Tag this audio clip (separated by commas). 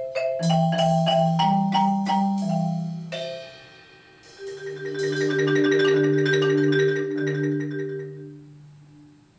xylophone, Music, Percussion